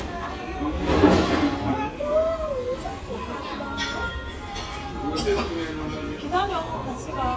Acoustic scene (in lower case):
restaurant